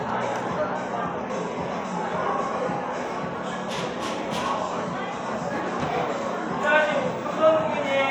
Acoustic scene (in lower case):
cafe